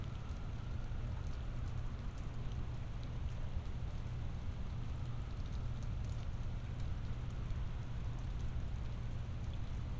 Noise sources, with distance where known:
background noise

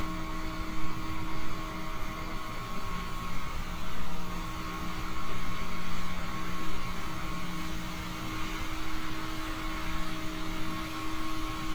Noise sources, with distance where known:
large-sounding engine

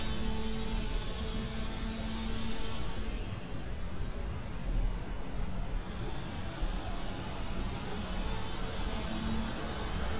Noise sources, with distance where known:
chainsaw, far

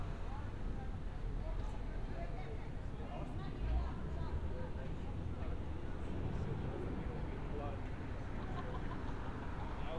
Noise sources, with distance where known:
person or small group talking

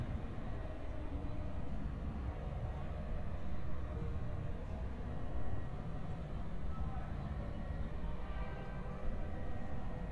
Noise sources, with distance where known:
unidentified alert signal; person or small group talking, far

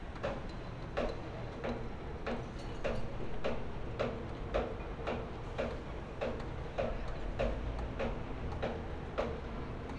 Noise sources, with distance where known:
pile driver

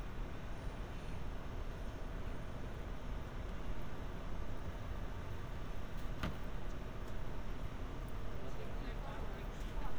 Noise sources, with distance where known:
person or small group talking, far

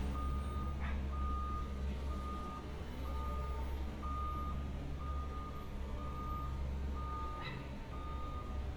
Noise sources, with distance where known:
reverse beeper, far; dog barking or whining, far

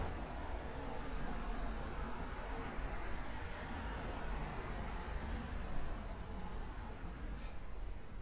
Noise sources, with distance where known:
background noise

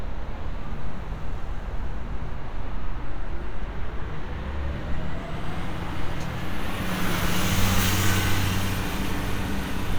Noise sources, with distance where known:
medium-sounding engine, near

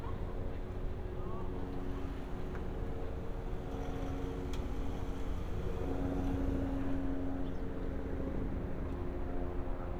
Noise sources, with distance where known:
engine of unclear size, far

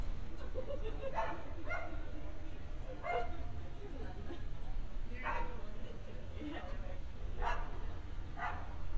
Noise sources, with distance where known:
person or small group talking, near

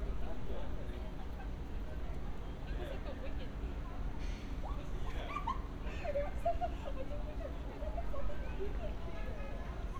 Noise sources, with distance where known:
non-machinery impact, far; car horn, far; person or small group talking, near

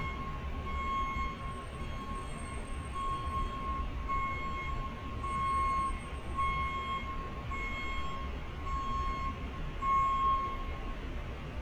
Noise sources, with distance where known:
reverse beeper, near

